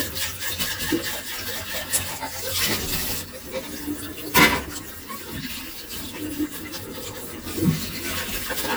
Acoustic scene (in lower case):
kitchen